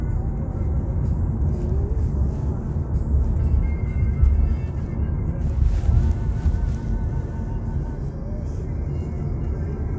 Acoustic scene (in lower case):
car